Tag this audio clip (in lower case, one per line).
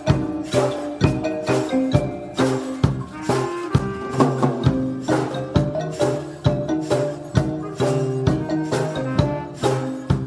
music
blues